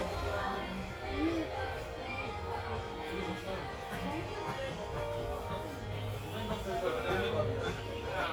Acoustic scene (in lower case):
crowded indoor space